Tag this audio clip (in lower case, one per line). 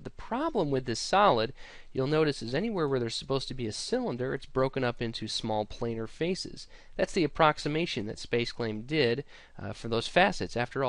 speech